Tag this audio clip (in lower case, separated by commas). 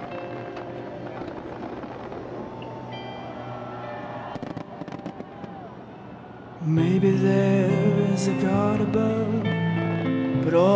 music, fireworks